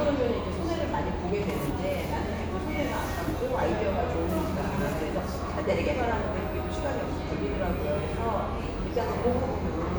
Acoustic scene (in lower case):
cafe